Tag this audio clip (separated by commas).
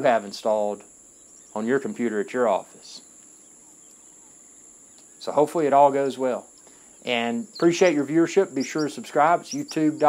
Insect, Cricket